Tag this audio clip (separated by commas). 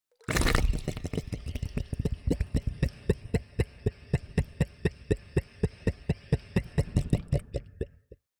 Water, Gurgling